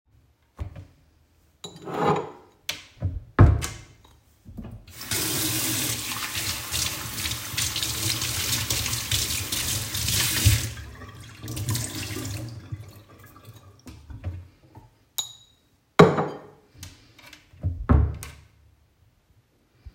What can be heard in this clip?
wardrobe or drawer, cutlery and dishes, running water